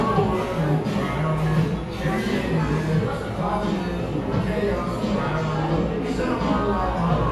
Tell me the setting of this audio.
cafe